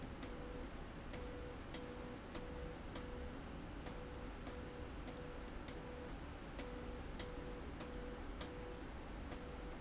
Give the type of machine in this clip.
slide rail